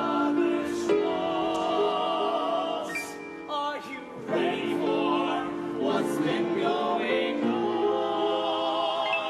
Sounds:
music

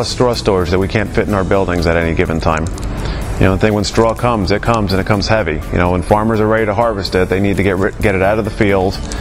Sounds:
speech
music

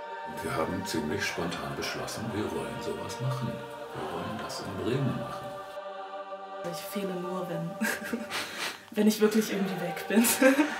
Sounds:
speech
music

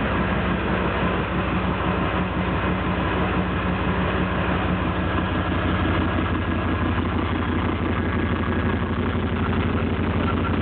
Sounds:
heavy engine (low frequency)

